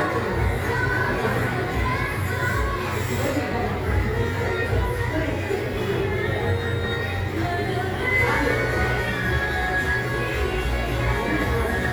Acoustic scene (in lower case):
crowded indoor space